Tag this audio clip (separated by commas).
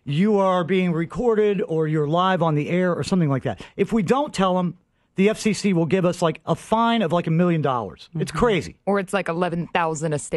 Speech